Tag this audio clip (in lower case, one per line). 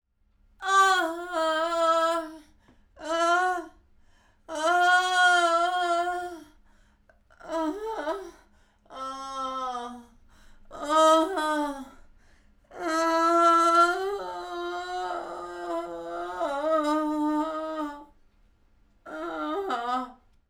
human voice